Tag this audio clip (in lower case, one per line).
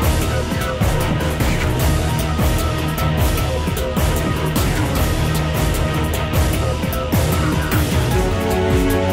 music